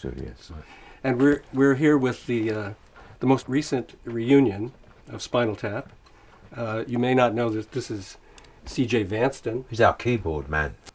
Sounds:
Speech

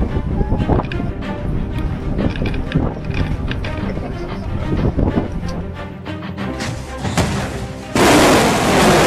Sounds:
missile launch

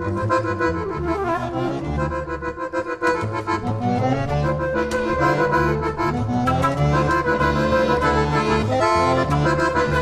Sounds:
Accordion, Flute, woodwind instrument

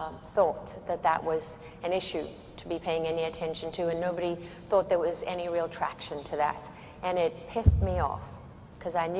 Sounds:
Narration, Speech, woman speaking

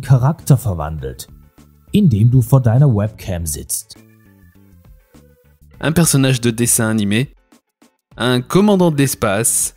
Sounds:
Speech, Music

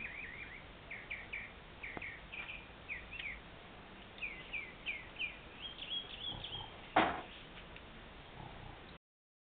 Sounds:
Bird

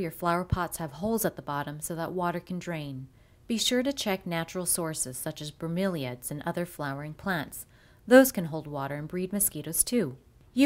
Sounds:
Speech

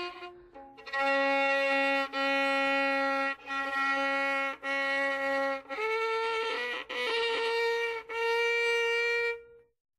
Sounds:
Violin, Music, Musical instrument

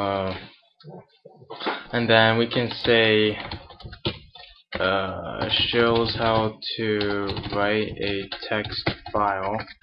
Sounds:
Speech

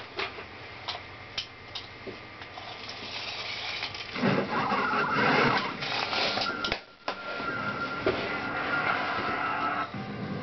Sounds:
inside a small room

